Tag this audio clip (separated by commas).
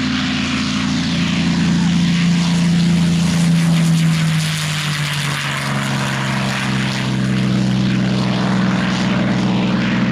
airplane flyby